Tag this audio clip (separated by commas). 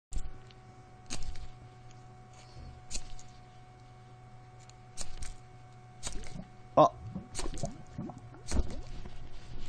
inside a small room